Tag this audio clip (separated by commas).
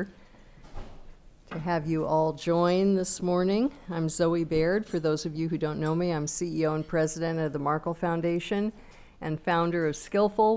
Speech